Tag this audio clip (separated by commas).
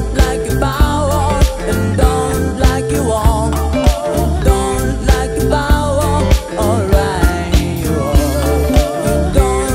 Music, Happy music